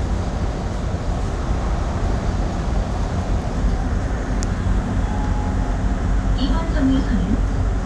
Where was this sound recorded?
on a bus